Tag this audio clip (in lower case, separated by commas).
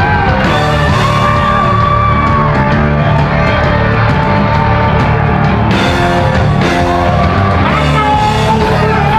music